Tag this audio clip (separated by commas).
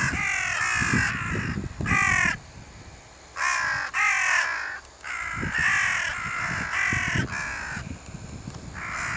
crow cawing